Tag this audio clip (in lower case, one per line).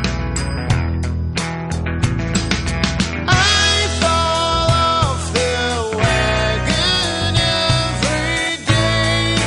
music